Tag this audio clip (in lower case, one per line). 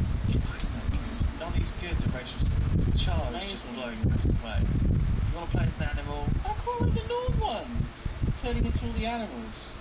speech